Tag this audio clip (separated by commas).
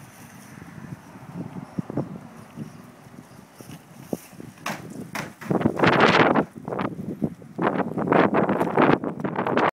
Motor vehicle (road), Car, Vehicle